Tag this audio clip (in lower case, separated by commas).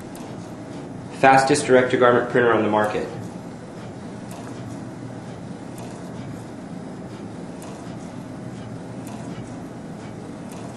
printer, speech